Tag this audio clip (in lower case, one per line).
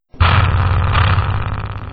engine